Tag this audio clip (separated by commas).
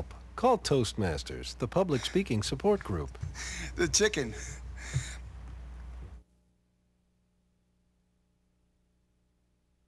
man speaking, Speech, monologue